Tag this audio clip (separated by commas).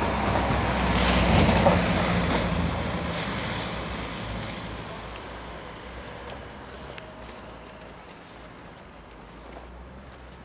Vehicle